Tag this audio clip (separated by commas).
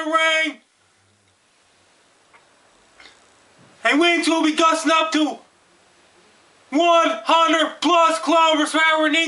Speech